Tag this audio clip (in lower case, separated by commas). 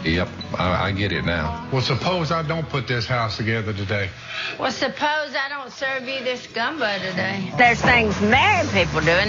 music, speech